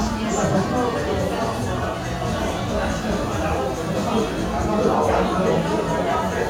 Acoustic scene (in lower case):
crowded indoor space